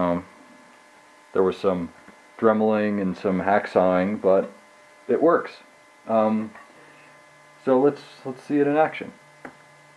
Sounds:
speech

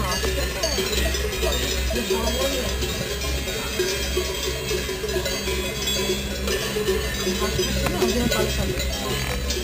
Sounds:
speech

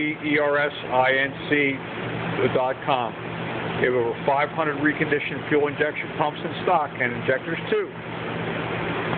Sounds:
speech

